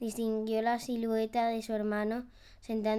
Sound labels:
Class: speech